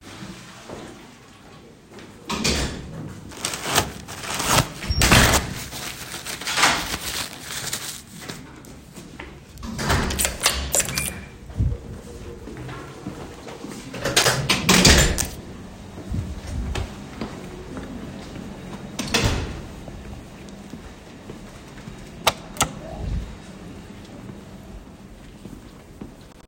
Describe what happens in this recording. I walked across the living room toward my backpack. I opened it, placed my wallet inside, and closed it again.